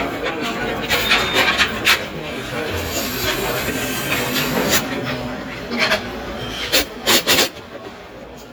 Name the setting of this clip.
restaurant